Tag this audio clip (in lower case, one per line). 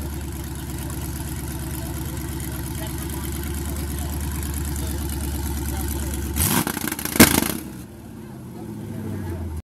vehicle
speech